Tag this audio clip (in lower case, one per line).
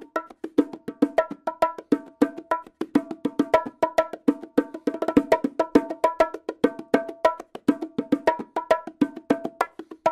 playing bongo